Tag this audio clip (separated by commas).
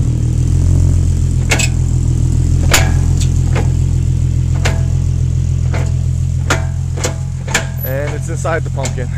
Speech, Vehicle, Car